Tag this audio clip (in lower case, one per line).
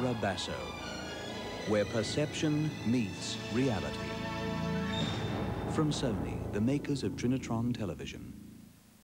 music
speech
television